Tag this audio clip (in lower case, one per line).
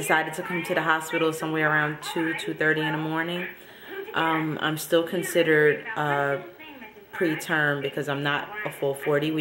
speech